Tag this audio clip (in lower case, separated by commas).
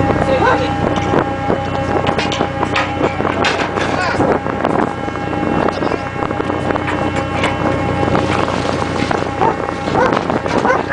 animal, water vehicle